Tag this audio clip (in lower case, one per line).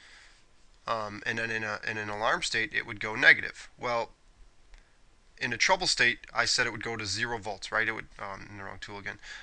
speech